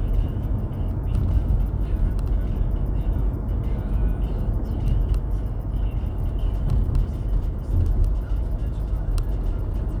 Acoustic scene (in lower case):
car